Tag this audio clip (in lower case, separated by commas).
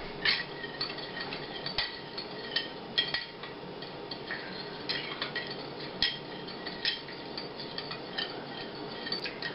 dishes, pots and pans, speech